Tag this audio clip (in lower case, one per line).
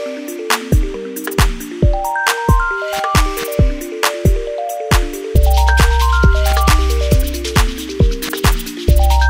music